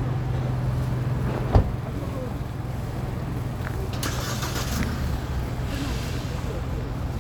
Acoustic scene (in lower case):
street